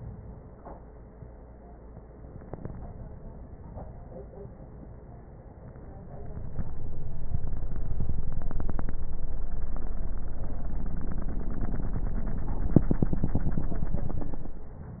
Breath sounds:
Inhalation: 2.14-4.62 s

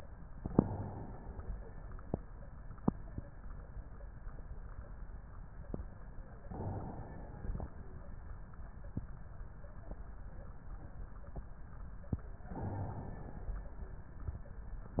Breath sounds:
Inhalation: 0.33-1.73 s, 6.37-7.76 s, 12.42-13.82 s

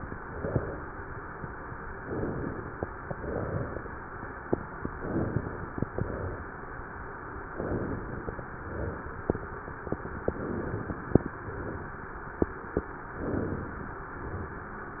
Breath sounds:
Inhalation: 0.00-0.92 s, 1.99-2.91 s, 4.89-5.81 s, 7.48-8.40 s, 10.21-11.28 s, 13.07-13.93 s
Exhalation: 3.06-3.98 s, 5.87-6.79 s, 8.46-9.39 s, 11.28-12.14 s, 13.93-14.80 s

